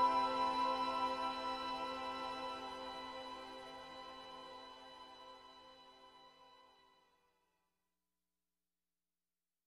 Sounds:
background music

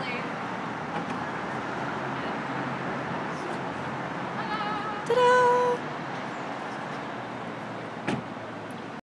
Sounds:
speech, vehicle

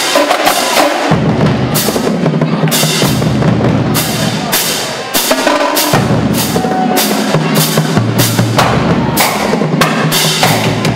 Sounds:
percussion, speech, music

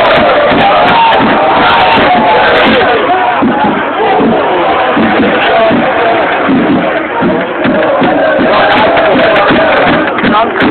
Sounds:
music, speech

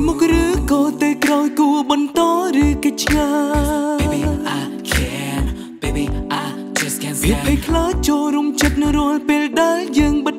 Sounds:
music

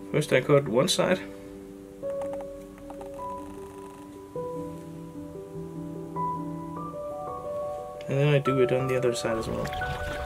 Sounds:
music, speech

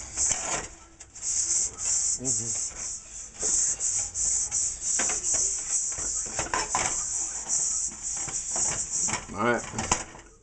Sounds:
speech

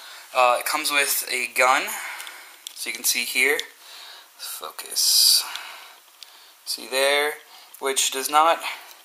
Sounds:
speech

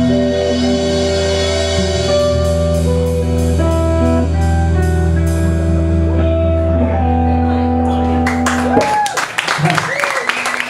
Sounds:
blues, speech, music

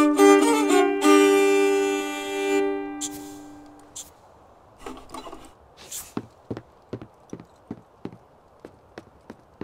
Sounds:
music, fiddle, musical instrument

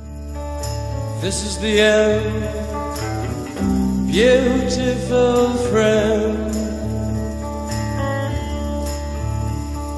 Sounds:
music

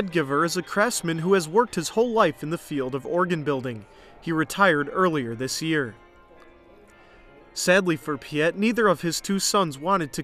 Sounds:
speech, music

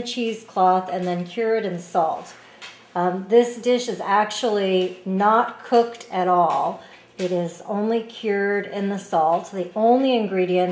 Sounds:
speech

